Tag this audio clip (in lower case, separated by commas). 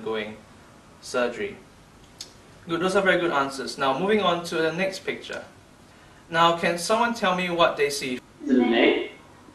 speech